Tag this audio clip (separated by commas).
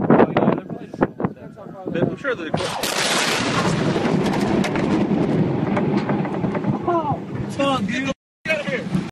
Speech